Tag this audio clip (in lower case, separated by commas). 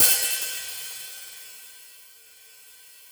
musical instrument, percussion, cymbal, hi-hat, music